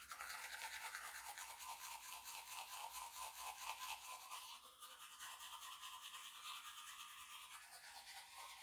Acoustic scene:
restroom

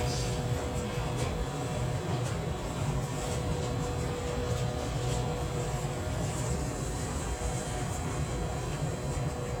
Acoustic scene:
subway train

